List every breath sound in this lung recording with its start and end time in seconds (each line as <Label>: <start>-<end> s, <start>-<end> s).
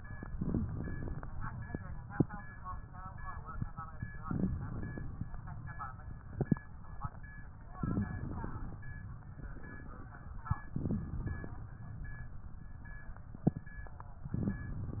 Inhalation: 0.28-1.24 s, 4.27-5.22 s, 7.84-8.79 s, 10.74-11.69 s, 14.25-15.00 s
Crackles: 0.27-1.22 s, 4.23-5.20 s, 7.82-8.79 s, 10.70-11.67 s, 14.25-15.00 s